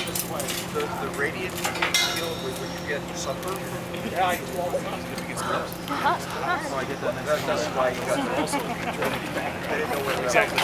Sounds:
speech

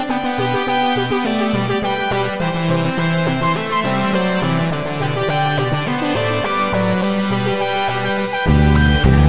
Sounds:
cacophony

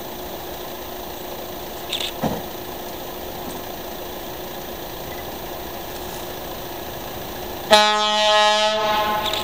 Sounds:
truck horn
train
railroad car
rail transport
vehicle

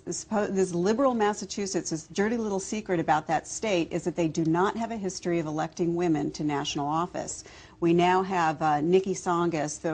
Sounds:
speech
female speech

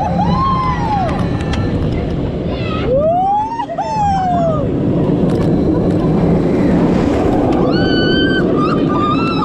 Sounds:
roller coaster running

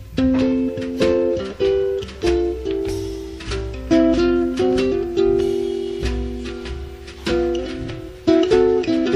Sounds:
inside a small room
ukulele
music

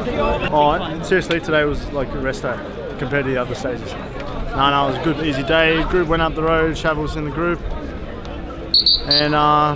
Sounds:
speech

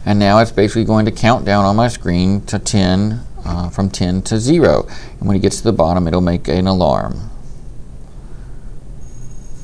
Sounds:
speech

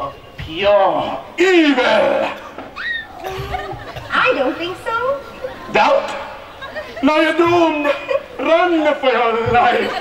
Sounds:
speech

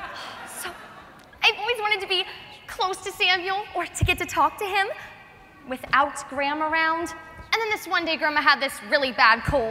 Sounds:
speech
monologue

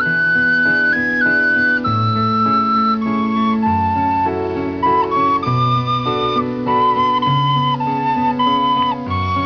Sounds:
flute
playing flute
musical instrument
music
wind instrument

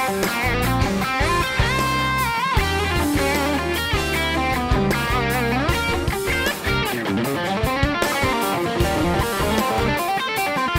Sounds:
music
effects unit
plucked string instrument
musical instrument
guitar
electric guitar

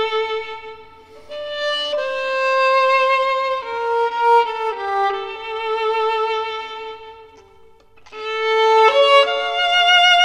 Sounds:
violin
music
musical instrument

